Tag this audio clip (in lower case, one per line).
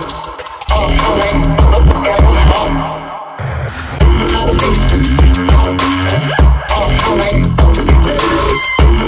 music